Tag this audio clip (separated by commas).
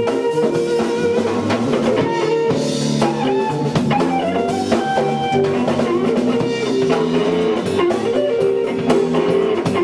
Music